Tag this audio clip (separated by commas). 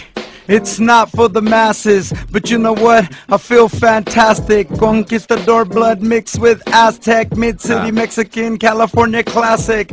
Music